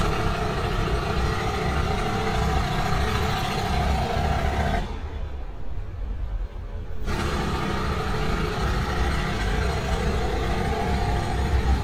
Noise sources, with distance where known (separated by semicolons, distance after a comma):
jackhammer, near